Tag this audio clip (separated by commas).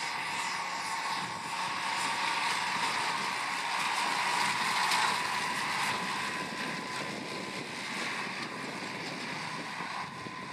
outside, rural or natural, Vehicle